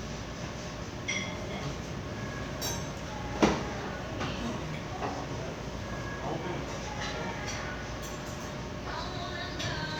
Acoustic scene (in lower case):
crowded indoor space